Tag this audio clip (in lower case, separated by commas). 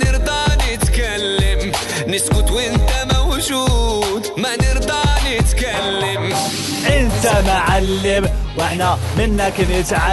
music